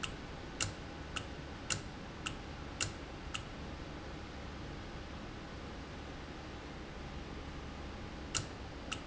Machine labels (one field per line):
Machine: valve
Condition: normal